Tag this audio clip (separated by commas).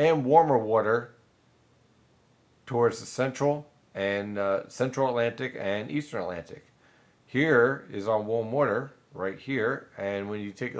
inside a small room, Speech